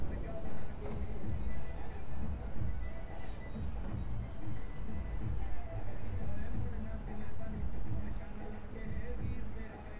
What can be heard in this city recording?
music from an unclear source, person or small group talking